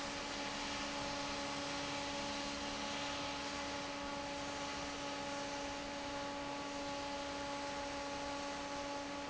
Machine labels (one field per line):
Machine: fan